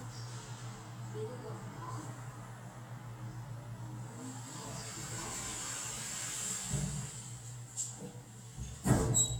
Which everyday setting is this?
elevator